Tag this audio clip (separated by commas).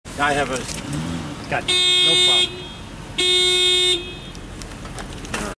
Car passing by, Speech